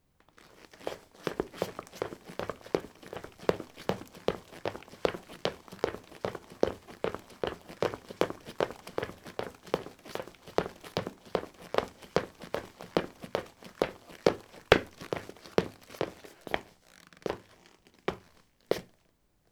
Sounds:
Run

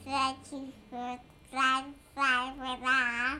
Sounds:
Speech, Human voice

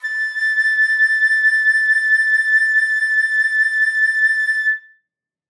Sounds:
woodwind instrument, Musical instrument, Music

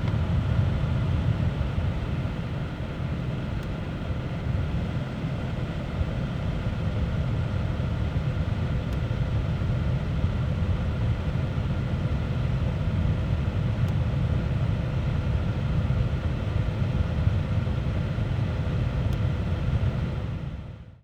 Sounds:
Mechanisms

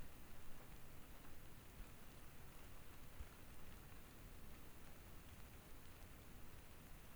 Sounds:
Water, Rain

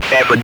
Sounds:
Human voice, Speech

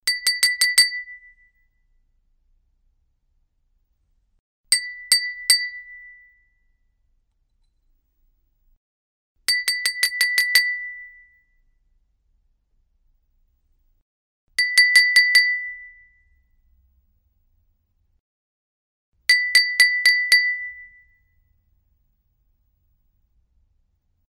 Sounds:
Glass, Chink

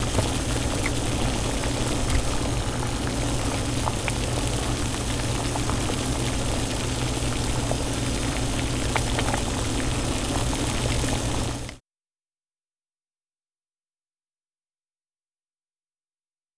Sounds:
Boiling, Liquid

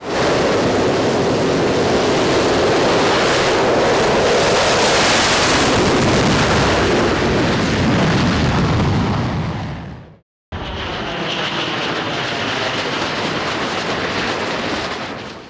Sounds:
Vehicle, Aircraft

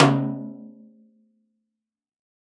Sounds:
Snare drum, Percussion, Drum, Musical instrument, Music

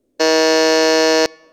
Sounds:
Alarm

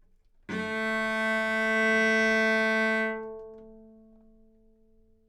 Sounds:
Musical instrument, Music, Bowed string instrument

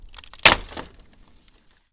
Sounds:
Wood, Crack

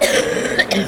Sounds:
Cough, Respiratory sounds

